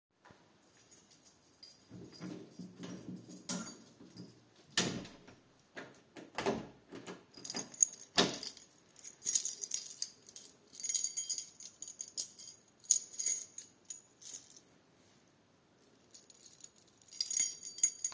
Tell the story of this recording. I came in the house, playing with the keys. I closed the door behind me. Continue playing with the keys in my hand.